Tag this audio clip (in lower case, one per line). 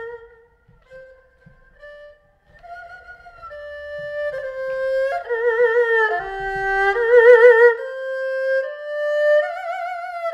playing erhu